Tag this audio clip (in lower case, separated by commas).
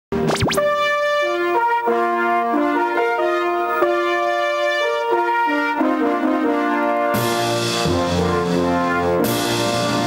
trumpet, brass instrument, trombone